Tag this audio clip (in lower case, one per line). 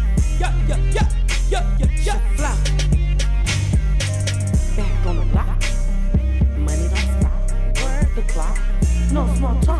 music